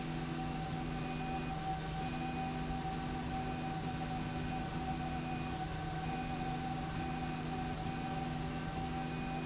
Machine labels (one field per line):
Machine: slide rail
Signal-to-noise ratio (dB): -6 dB